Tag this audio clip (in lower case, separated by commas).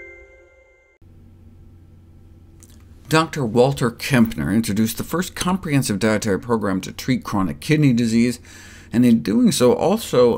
reversing beeps